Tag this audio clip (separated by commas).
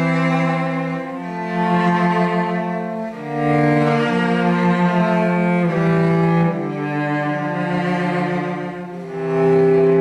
Musical instrument, playing cello, Music, Cello